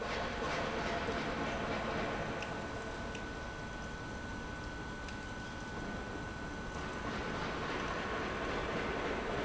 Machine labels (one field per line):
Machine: pump